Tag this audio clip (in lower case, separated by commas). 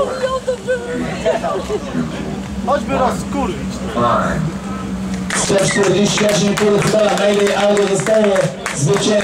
speech